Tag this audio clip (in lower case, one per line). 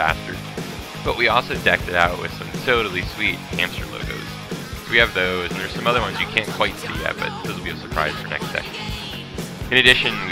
music
speech